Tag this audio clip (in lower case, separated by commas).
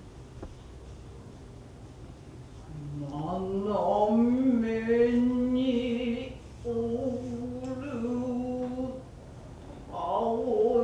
speech